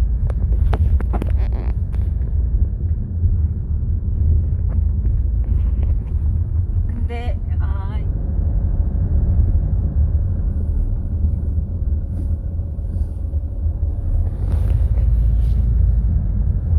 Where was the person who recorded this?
in a car